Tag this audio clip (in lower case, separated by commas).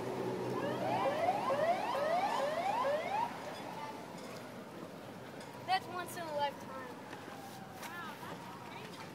vehicle, speech, motorboat